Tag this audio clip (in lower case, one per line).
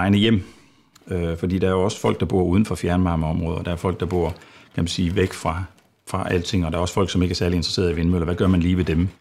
speech